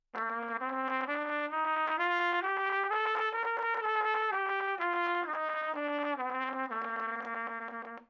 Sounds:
musical instrument
trumpet
brass instrument
music

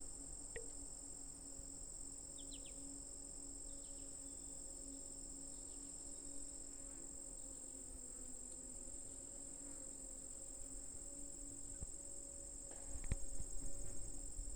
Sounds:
insect
wild animals
cricket
animal

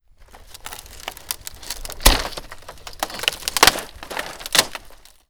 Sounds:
wood

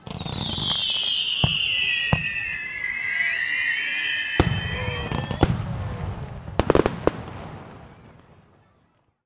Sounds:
fireworks
explosion

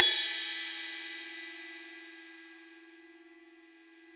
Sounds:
cymbal
musical instrument
percussion
music
crash cymbal

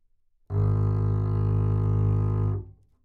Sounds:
music
bowed string instrument
musical instrument

